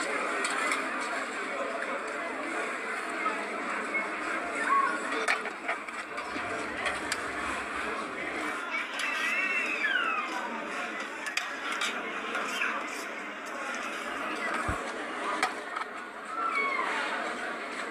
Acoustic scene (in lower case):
restaurant